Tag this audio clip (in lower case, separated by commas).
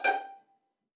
bowed string instrument, musical instrument, music